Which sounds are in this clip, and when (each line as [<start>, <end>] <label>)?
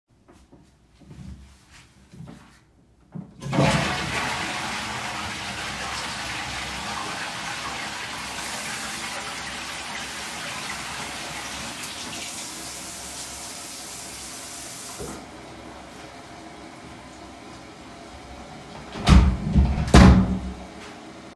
[0.22, 3.35] footsteps
[3.42, 21.35] toilet flushing
[8.18, 15.32] running water
[19.03, 20.62] door